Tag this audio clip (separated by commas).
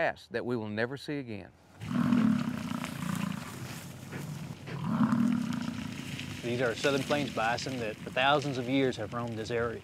Wild animals, Animal